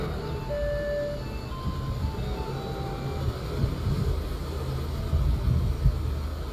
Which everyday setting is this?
residential area